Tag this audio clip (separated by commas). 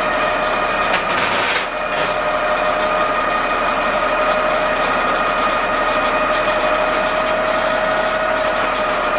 Heavy engine (low frequency)